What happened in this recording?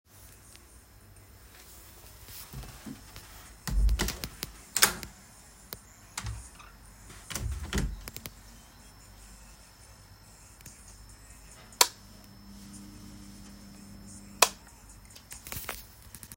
I walked along the hallway toggling two light switches, then opened and closed a nearby door. The microphone moved with me, capturing crisp switch clicks and the door latch at different distances.